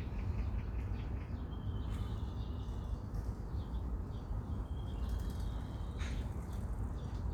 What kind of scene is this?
park